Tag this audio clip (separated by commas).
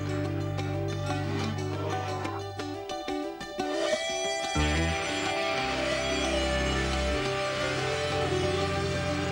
Music